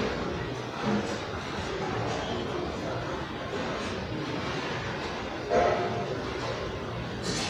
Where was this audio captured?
in a restaurant